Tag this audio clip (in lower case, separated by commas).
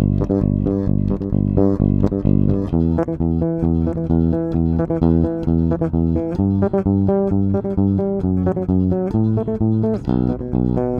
bass guitar, music, musical instrument, guitar